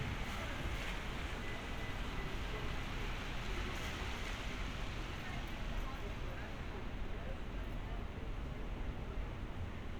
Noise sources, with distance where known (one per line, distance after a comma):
person or small group talking, far